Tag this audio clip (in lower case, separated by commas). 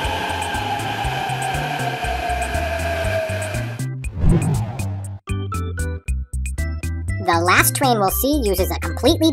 train, music for children, speech, music